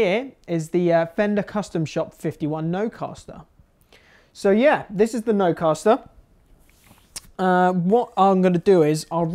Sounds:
Speech

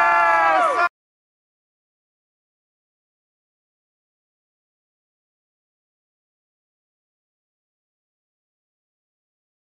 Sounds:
Speech

